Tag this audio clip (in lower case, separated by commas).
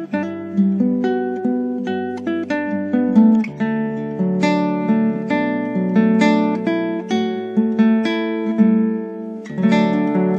strum, acoustic guitar, plucked string instrument, musical instrument, music, guitar